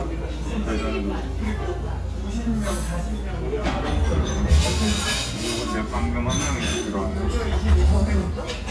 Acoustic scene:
restaurant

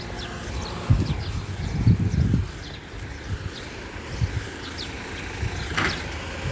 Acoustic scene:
residential area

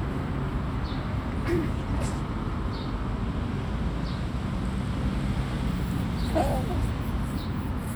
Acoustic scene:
residential area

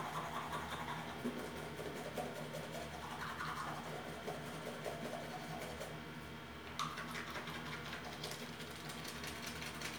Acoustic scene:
restroom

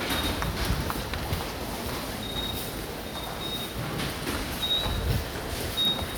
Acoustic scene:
subway station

